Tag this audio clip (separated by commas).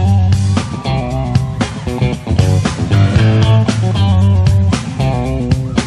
Music